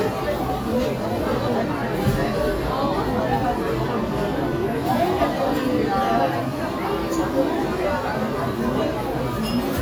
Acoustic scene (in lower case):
restaurant